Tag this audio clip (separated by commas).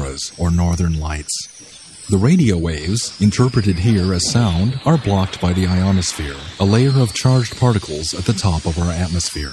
Speech